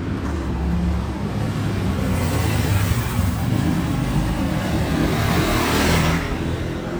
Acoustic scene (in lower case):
residential area